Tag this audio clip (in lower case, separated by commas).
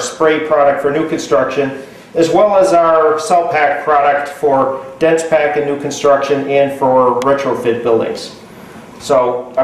speech